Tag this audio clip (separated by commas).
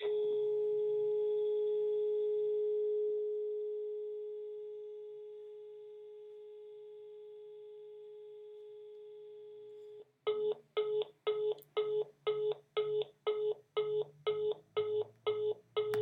Alarm, Telephone